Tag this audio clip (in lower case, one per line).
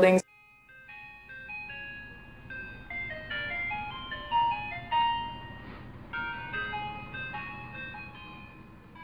music
speech